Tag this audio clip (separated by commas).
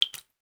Drip, Liquid